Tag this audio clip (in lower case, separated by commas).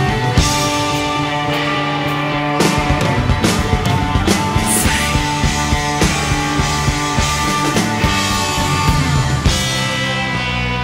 progressive rock, music